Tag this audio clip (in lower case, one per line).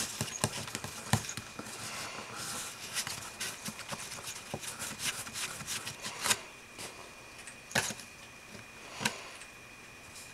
inside a small room